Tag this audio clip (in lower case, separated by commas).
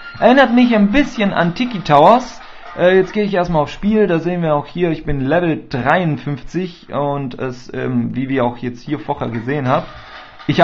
speech